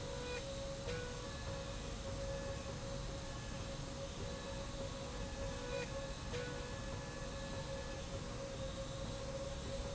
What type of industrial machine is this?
slide rail